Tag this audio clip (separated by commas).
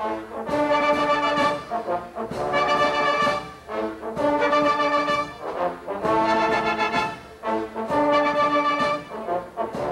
Music, Musical instrument, Foghorn